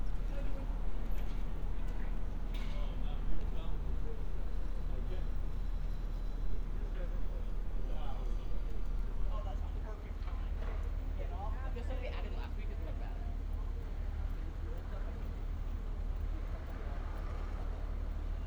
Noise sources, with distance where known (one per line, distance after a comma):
person or small group talking